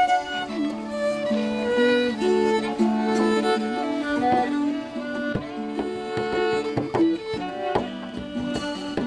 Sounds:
Violin, Music, Musical instrument

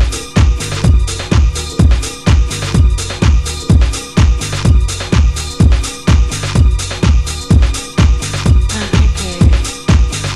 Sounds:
Music, Speech

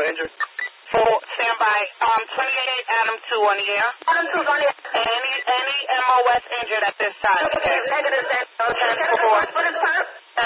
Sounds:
police radio chatter

